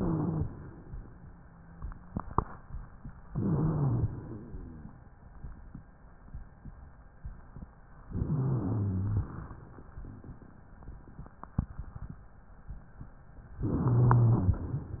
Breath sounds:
3.28-4.05 s: inhalation
3.32-4.09 s: wheeze
4.08-5.16 s: exhalation
8.08-9.07 s: inhalation
8.27-9.25 s: rhonchi
9.07-10.70 s: exhalation
13.65-14.57 s: inhalation
13.82-14.55 s: rhonchi

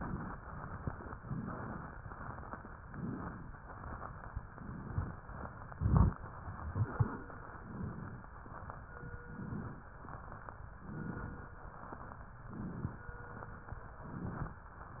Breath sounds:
0.00-0.33 s: inhalation
0.36-1.17 s: exhalation
1.17-1.92 s: inhalation
1.97-2.78 s: exhalation
2.85-3.46 s: inhalation
3.58-4.49 s: exhalation
4.56-5.15 s: inhalation
5.17-5.70 s: exhalation
5.73-6.14 s: inhalation
6.27-7.47 s: exhalation
7.54-8.26 s: inhalation
8.28-9.15 s: exhalation
9.19-9.91 s: inhalation
9.95-10.82 s: exhalation
10.84-11.56 s: inhalation
11.60-12.47 s: exhalation
12.47-13.09 s: inhalation
13.11-13.98 s: exhalation
14.02-14.64 s: inhalation
14.66-15.00 s: exhalation

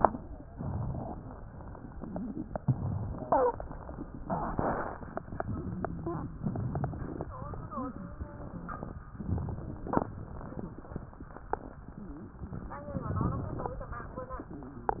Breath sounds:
0.46-1.18 s: inhalation

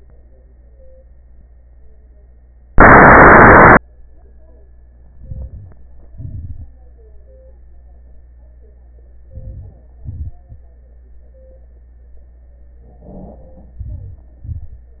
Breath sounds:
5.13-5.81 s: inhalation
6.03-6.75 s: exhalation
9.25-10.01 s: inhalation
10.01-10.63 s: exhalation
13.82-14.44 s: inhalation
14.44-15.00 s: exhalation

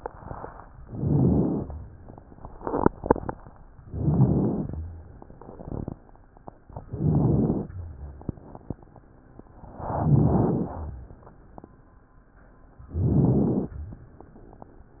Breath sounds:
0.82-1.71 s: inhalation
0.82-1.71 s: rhonchi
3.90-4.78 s: inhalation
3.90-4.78 s: rhonchi
6.83-7.71 s: rhonchi
6.85-7.73 s: inhalation
9.92-10.86 s: inhalation
9.92-10.86 s: rhonchi
12.89-13.77 s: inhalation
12.89-13.77 s: rhonchi

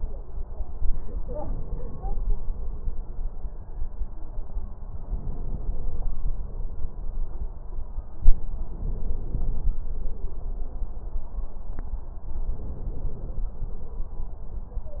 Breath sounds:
4.96-6.16 s: inhalation
8.63-9.75 s: inhalation
12.36-13.49 s: inhalation

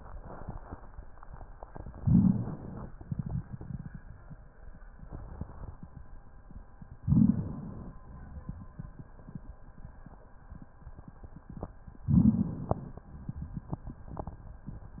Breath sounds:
1.97-2.92 s: inhalation
1.97-2.92 s: crackles
2.92-4.04 s: exhalation
2.93-4.04 s: crackles
7.05-7.98 s: inhalation
12.13-13.06 s: inhalation
12.13-13.06 s: crackles

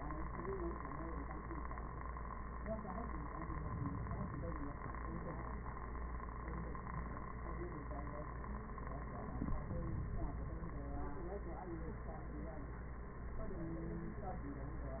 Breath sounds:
3.21-4.71 s: inhalation
9.23-10.73 s: inhalation

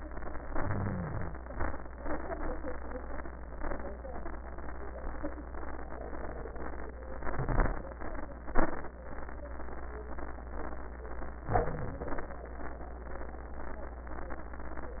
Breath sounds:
0.39-1.46 s: crackles
0.44-1.47 s: inhalation
1.47-2.17 s: crackles
1.50-2.16 s: exhalation
7.15-7.81 s: inhalation
11.40-12.32 s: crackles
11.46-12.31 s: inhalation

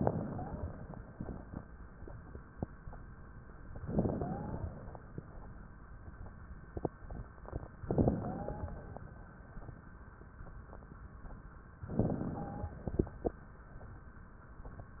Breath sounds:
0.00-0.66 s: wheeze
3.83-4.88 s: inhalation
4.10-4.68 s: wheeze
7.81-8.95 s: inhalation
7.91-8.85 s: wheeze
11.91-12.91 s: inhalation
12.11-12.81 s: wheeze

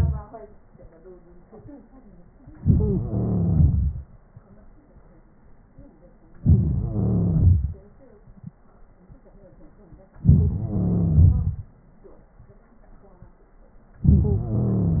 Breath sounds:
2.58-4.02 s: inhalation
6.40-7.81 s: inhalation
10.29-11.69 s: inhalation

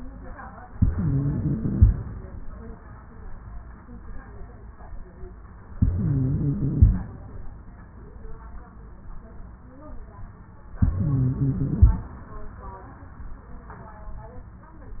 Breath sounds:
0.72-1.75 s: inhalation
0.72-1.75 s: wheeze
1.77-2.41 s: exhalation
1.77-2.41 s: crackles
5.76-6.76 s: inhalation
5.76-6.76 s: wheeze
6.78-7.43 s: exhalation
6.78-7.43 s: crackles
10.81-11.82 s: inhalation
10.81-11.82 s: wheeze
11.84-12.37 s: exhalation
11.84-12.37 s: crackles

